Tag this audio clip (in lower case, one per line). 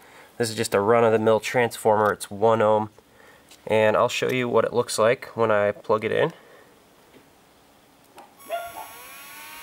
speech